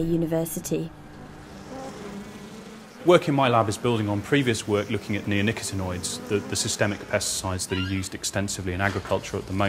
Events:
[0.00, 0.86] woman speaking
[0.00, 9.65] mechanisms
[0.01, 9.65] conversation
[1.63, 7.63] buzz
[3.01, 9.65] male speech
[7.67, 8.10] squeak
[8.80, 8.94] footsteps
[9.06, 9.17] footsteps

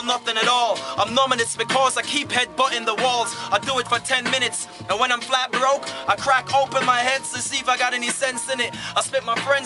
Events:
[0.00, 0.75] rapping
[0.01, 9.65] music
[0.77, 0.94] breathing
[0.96, 3.26] rapping
[3.50, 4.65] rapping
[4.63, 4.81] breathing
[4.89, 5.82] rapping
[5.82, 6.04] breathing
[6.05, 8.67] rapping
[8.71, 8.91] breathing
[8.94, 9.65] rapping

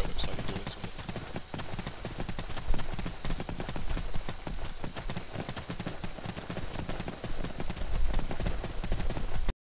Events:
[0.00, 0.78] man speaking
[0.00, 9.47] insect
[0.00, 9.47] video game sound
[0.00, 9.48] tap dance

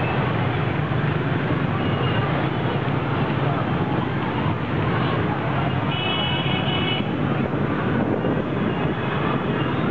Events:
[0.01, 9.90] vehicle
[5.78, 7.12] honking

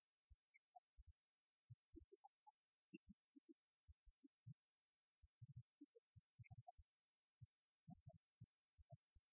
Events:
[0.00, 9.32] mechanisms

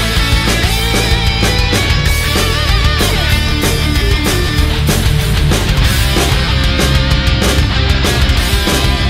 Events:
[0.00, 9.05] music

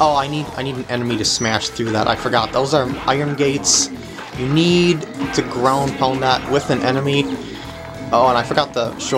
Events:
[0.00, 9.15] video game sound
[0.01, 3.83] man speaking
[4.29, 4.88] man speaking
[5.09, 7.35] man speaking
[8.07, 9.15] man speaking

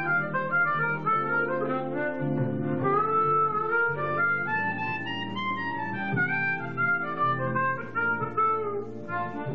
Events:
[0.00, 9.54] music

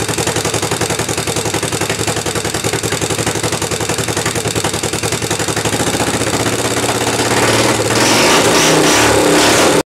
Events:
[0.00, 9.80] medium engine (mid frequency)

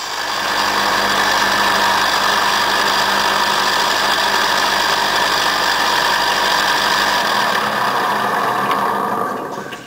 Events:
[0.00, 9.85] table saw
[8.66, 8.76] generic impact sounds
[9.67, 9.73] generic impact sounds

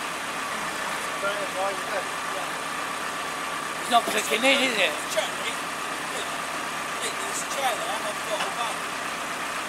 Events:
[0.00, 9.65] heavy engine (low frequency)
[0.00, 9.65] wind
[1.16, 9.65] conversation
[1.17, 1.96] man speaking
[2.26, 2.38] man speaking
[3.84, 4.90] man speaking
[5.04, 5.42] man speaking
[6.09, 6.25] man speaking
[6.97, 8.76] man speaking

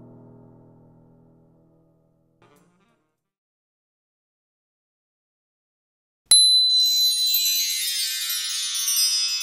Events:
[0.00, 3.35] music
[6.30, 7.79] sine wave
[6.66, 9.42] music

